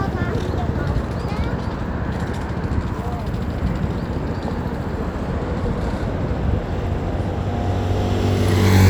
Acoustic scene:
street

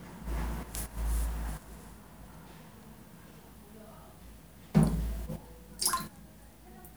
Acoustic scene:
restroom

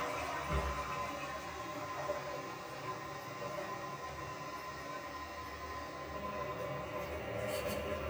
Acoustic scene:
restroom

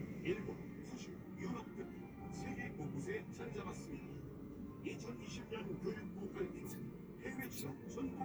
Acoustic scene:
car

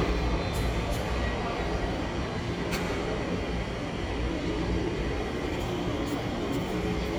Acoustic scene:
subway station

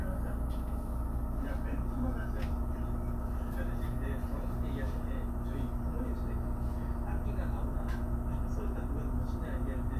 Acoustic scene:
bus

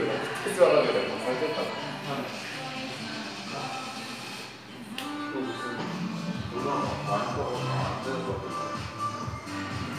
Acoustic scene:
crowded indoor space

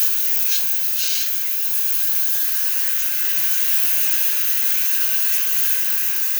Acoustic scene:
restroom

